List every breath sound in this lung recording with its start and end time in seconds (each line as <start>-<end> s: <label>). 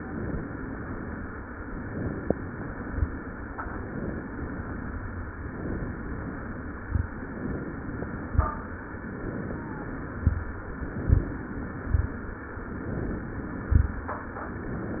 0.00-0.50 s: inhalation
1.83-2.69 s: inhalation
3.52-4.38 s: inhalation
5.39-6.25 s: inhalation
7.24-8.16 s: inhalation
9.01-10.05 s: inhalation
10.80-11.84 s: inhalation
12.69-13.73 s: inhalation
14.74-15.00 s: inhalation